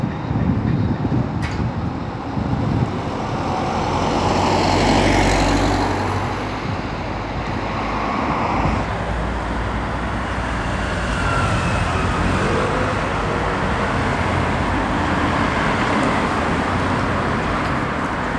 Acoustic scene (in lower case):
street